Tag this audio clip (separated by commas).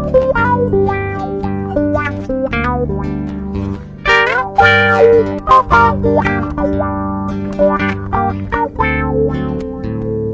Pizzicato, Zither